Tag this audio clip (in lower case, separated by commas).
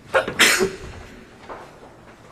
respiratory sounds, sneeze